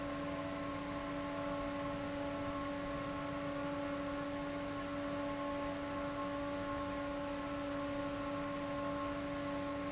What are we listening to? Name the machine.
fan